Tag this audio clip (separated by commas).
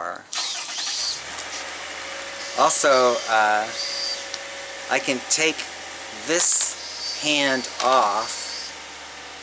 Speech